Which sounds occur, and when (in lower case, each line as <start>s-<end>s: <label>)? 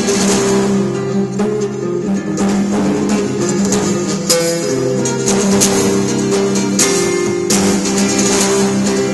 0.0s-9.1s: music